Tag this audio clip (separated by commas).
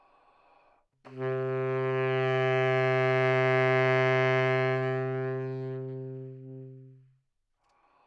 Musical instrument, Music, Wind instrument